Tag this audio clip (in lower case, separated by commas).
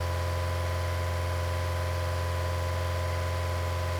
motor vehicle (road), car, vehicle